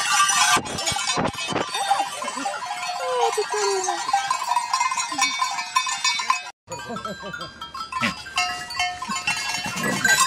Dishes rattle, and a person laughs